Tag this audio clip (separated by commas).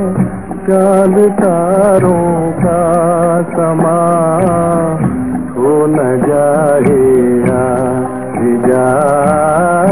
Music, Middle Eastern music